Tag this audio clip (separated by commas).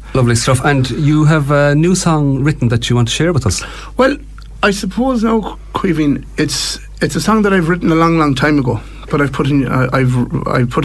Speech